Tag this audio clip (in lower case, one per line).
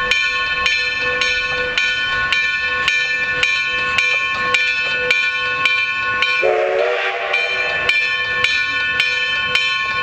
vehicle
engine